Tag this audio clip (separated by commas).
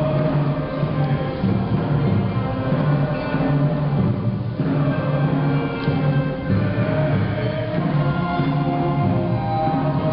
Music